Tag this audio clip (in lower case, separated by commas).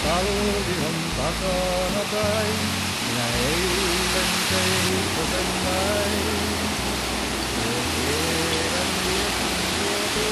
music